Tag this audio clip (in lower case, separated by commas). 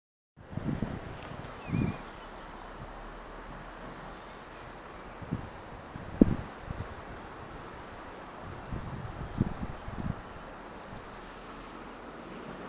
wind